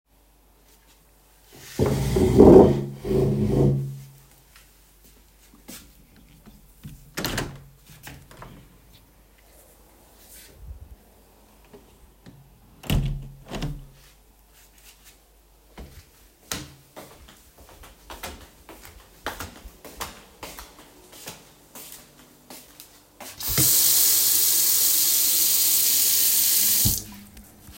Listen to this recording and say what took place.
I started recording while standing near the window. I moved a chair, then opened and closed the window. After that I walked toward the kitchen and turned on the running water before stopping the recording.